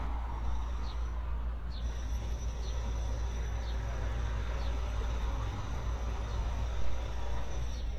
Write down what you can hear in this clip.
engine of unclear size, jackhammer